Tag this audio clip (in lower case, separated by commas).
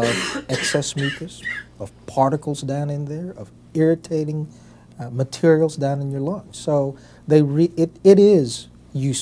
speech, throat clearing